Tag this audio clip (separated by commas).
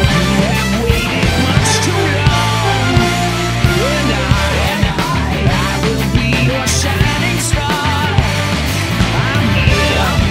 Music